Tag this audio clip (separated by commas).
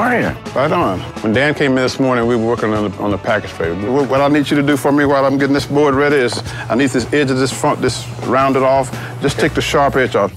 Speech, Music